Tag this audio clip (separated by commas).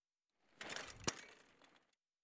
Vehicle, Bicycle